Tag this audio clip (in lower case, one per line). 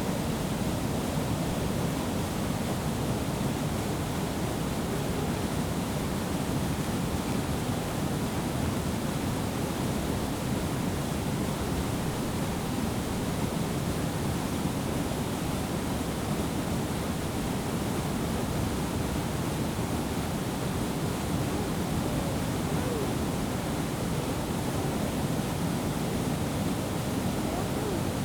water